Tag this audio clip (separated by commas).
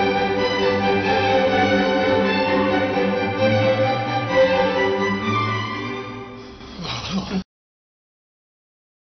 Music